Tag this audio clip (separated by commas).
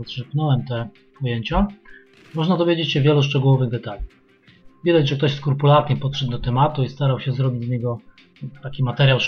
Speech